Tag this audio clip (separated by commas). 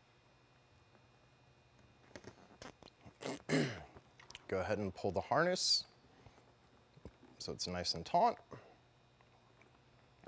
inside a small room, Speech